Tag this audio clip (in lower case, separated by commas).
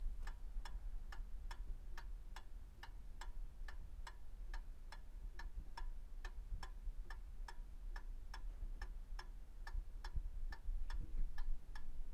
clock, mechanisms